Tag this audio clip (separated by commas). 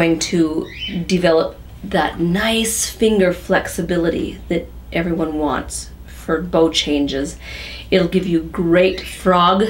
Speech